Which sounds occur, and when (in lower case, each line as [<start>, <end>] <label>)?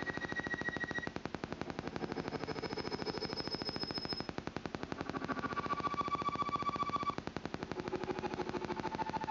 [0.00, 9.30] mechanisms